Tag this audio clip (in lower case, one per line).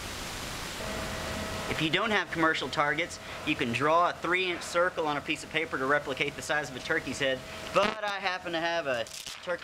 speech